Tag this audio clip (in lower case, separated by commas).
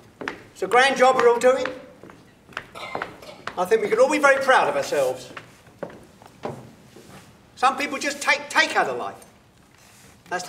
inside a large room or hall, speech